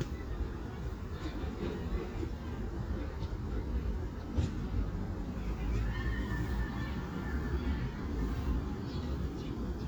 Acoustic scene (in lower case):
residential area